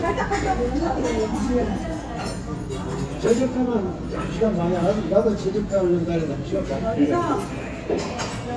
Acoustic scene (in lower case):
restaurant